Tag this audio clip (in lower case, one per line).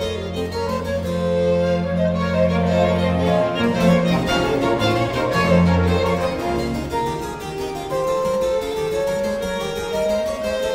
bowed string instrument
piano
music
musical instrument
fiddle